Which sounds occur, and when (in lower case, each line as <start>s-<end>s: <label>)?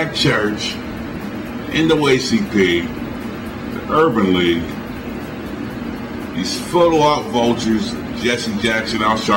0.0s-0.8s: man speaking
0.0s-9.3s: mechanisms
1.7s-2.9s: man speaking
3.7s-4.7s: man speaking
6.4s-7.9s: man speaking
8.1s-9.3s: man speaking